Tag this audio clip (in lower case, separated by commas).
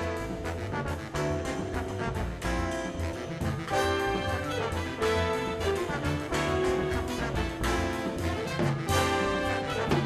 orchestra, music, independent music